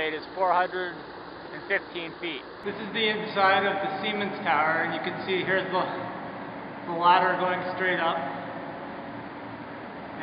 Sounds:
speech

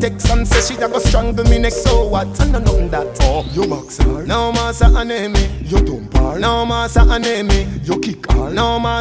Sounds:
hip hop music, reggae, music

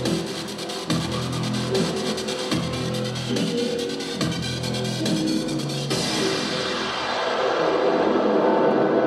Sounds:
dance music, music

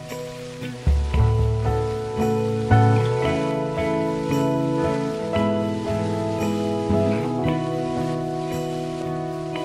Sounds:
music, rain on surface

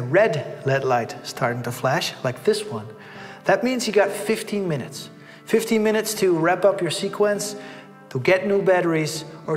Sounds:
music, speech

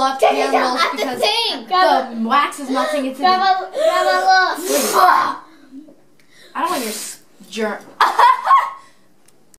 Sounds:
speech

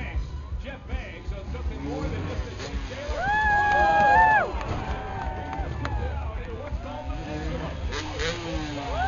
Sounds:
motor vehicle (road), vehicle, speech

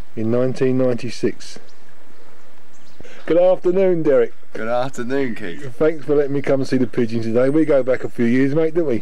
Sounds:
speech, bird

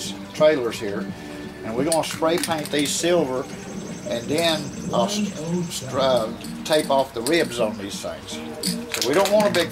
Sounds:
music, speech

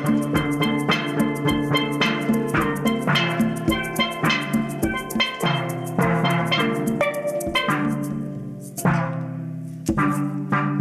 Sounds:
playing steelpan

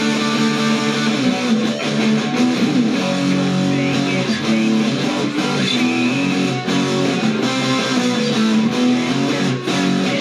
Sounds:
music, guitar, plucked string instrument, electric guitar, musical instrument

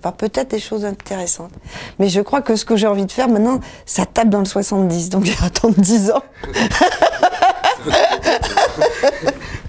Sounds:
speech, snicker

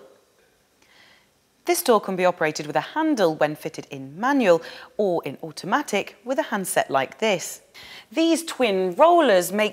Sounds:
speech

